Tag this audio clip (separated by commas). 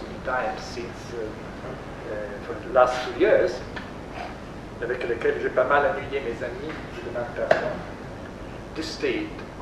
inside a small room, Speech